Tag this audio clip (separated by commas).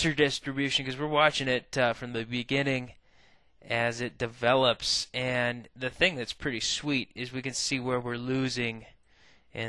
Speech